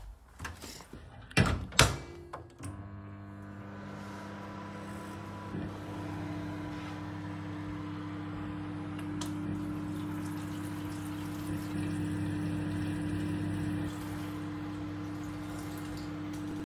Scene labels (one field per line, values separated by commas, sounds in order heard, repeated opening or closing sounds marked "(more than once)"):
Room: kitchen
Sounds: microwave, running water